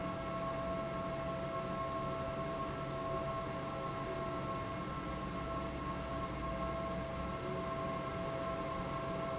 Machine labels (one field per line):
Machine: fan